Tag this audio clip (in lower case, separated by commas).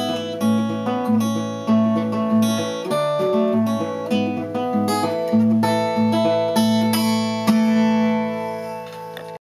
music